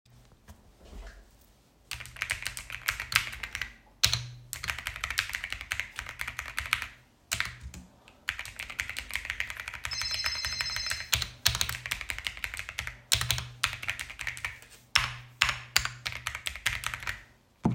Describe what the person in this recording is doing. I sat at my desk and began typing on the keyboard. After a few seconds my phone started ringing and both the keyboard typing and phone ringing sounds overlapped simultaneously. I continued typing while the phone rang for several seconds.